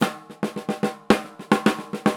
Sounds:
music
percussion
musical instrument
drum
drum kit

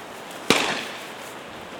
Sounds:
gunshot
explosion

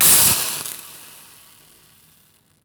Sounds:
hiss

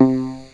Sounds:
musical instrument
keyboard (musical)
music

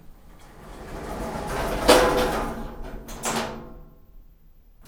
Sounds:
sliding door
slam
door
domestic sounds

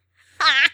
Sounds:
laughter
human voice

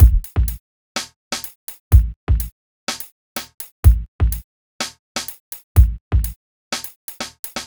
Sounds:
drum kit
musical instrument
percussion
music

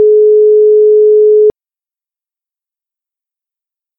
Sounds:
alarm
telephone

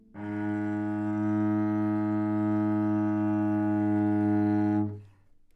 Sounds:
music
musical instrument
bowed string instrument

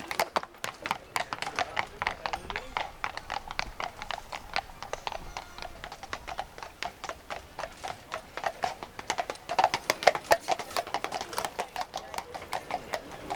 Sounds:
animal
livestock

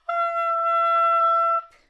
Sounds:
musical instrument
wind instrument
music

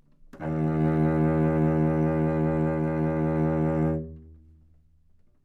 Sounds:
musical instrument
bowed string instrument
music

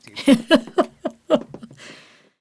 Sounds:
giggle
human voice
laughter

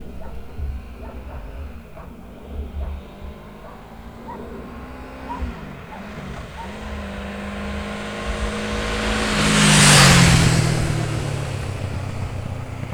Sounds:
vehicle
motor vehicle (road)
motorcycle

